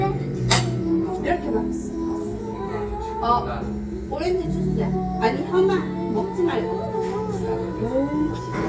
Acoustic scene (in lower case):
crowded indoor space